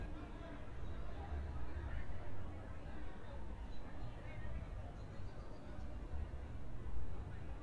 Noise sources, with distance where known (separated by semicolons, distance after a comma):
person or small group talking, far